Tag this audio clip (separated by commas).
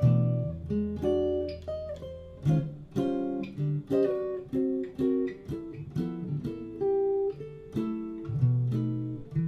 Guitar, Acoustic guitar, Plucked string instrument, Musical instrument, inside a small room, Music